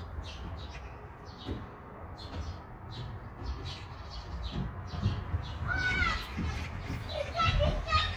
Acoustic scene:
park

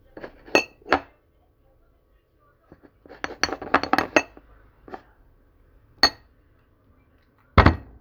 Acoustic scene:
kitchen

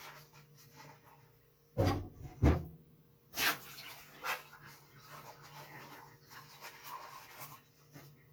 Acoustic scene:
kitchen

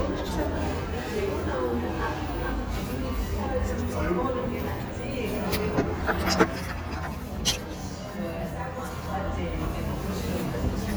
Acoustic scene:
cafe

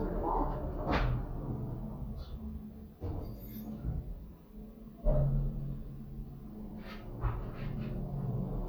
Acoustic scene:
elevator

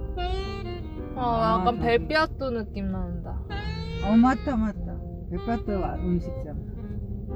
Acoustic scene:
car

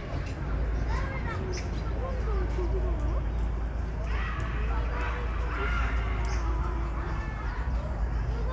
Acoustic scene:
park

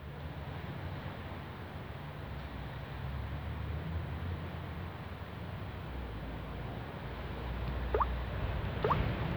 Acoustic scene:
residential area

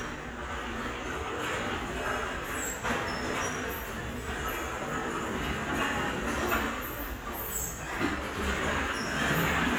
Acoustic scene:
restaurant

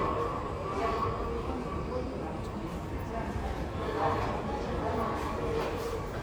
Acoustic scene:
subway station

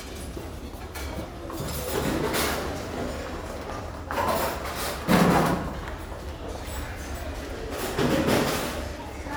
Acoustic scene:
restaurant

